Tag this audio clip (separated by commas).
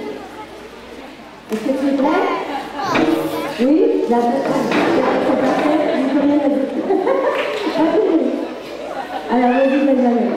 Speech